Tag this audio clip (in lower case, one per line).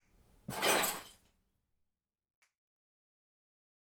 glass